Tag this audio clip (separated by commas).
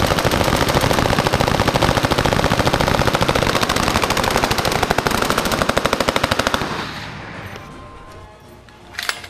Machine gun, machine gun shooting, Music